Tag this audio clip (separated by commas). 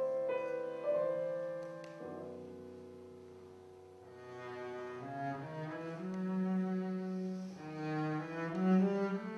playing cello, Music, Cello